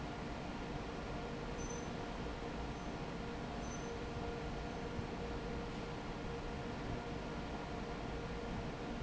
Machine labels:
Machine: fan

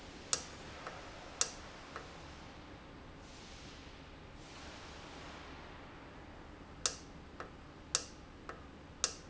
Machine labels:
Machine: valve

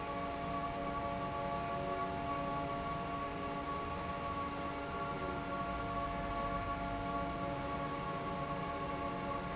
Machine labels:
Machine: fan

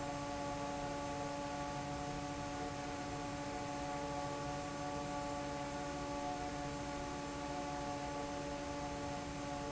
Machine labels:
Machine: fan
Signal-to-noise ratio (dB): 0 dB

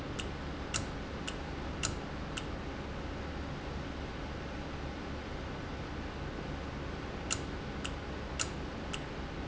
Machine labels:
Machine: valve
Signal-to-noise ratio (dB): -6 dB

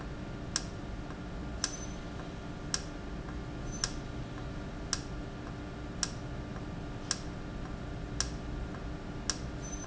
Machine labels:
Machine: valve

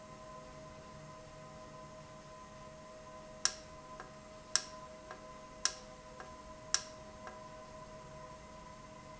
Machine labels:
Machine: valve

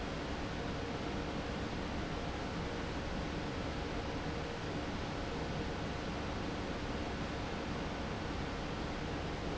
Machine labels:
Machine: fan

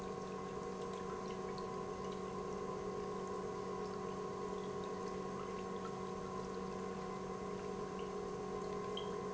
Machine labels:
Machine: pump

